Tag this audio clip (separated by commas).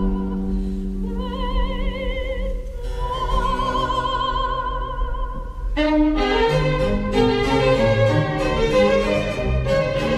Opera, Music